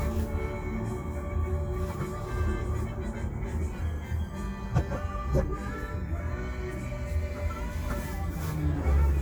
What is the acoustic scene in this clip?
car